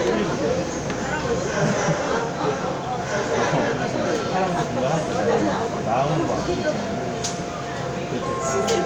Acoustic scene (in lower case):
subway train